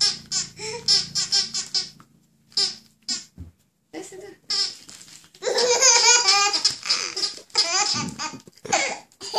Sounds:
baby laughter

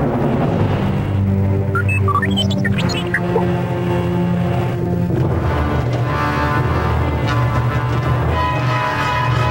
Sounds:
inside a large room or hall, music

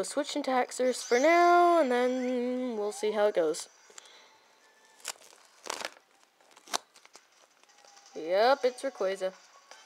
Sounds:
inside a small room, speech, music

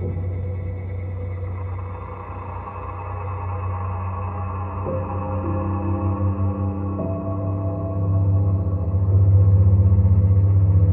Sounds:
electronic music, music, ambient music

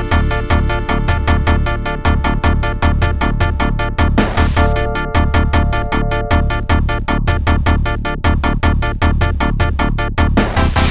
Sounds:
music

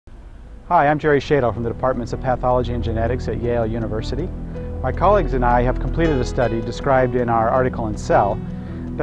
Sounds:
music, speech

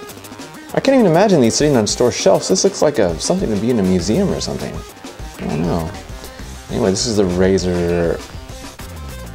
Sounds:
speech, music

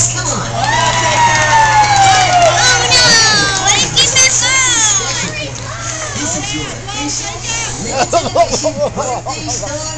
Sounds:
speech

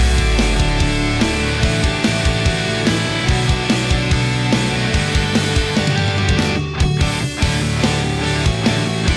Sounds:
exciting music, music

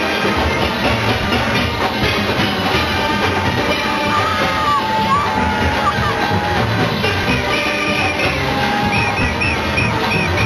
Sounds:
steelpan, music

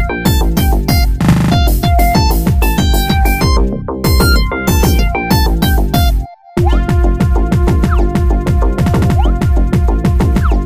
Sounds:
music

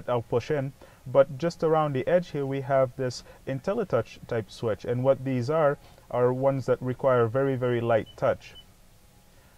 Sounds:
speech

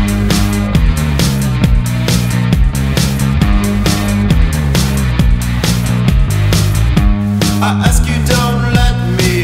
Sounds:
music

